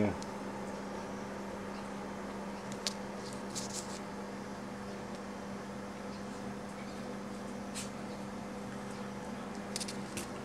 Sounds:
inside a small room

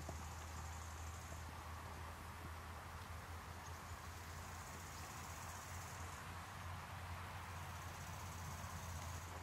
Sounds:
Insect, Cricket

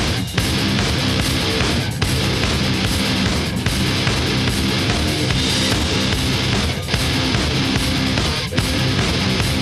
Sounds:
Music

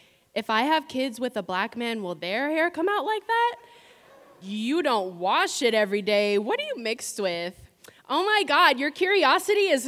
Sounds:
Speech

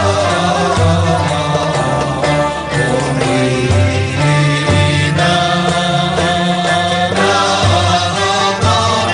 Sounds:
Music

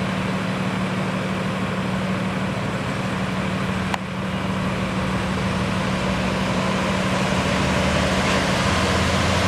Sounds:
Truck, Vehicle

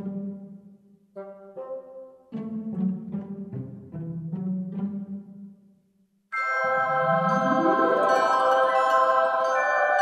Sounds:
Music, Soundtrack music

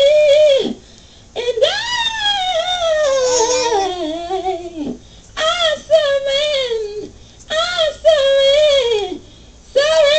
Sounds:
Female singing

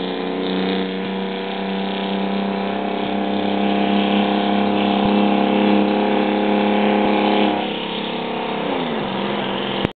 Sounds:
Vehicle, Truck

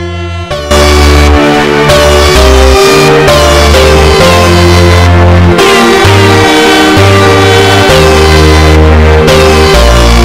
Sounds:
Air horn, Music

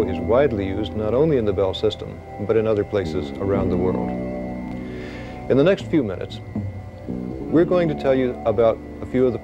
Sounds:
Music, Speech

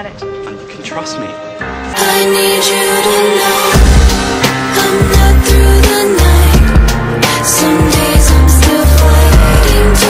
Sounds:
Music, Speech

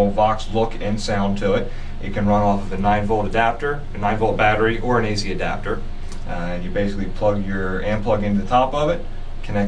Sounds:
Speech

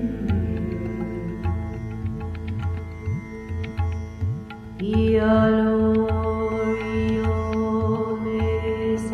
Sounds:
Musical instrument, Music

